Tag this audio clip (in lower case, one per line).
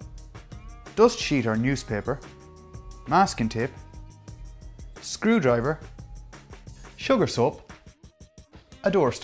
speech
music